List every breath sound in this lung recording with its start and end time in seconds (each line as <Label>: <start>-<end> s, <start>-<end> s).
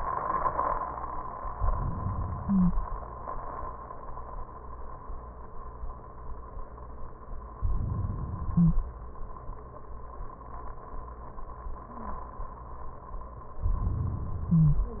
Inhalation: 1.55-2.44 s, 7.55-8.45 s, 13.64-14.54 s
Stridor: 2.43-2.74 s, 8.59-8.83 s, 14.57-14.83 s